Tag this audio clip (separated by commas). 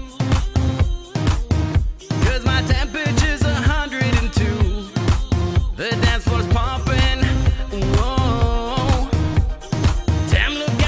Music, Independent music, Middle Eastern music